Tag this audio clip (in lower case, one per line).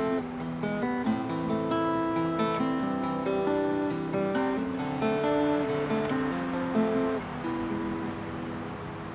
plucked string instrument
music
speech
guitar
acoustic guitar
musical instrument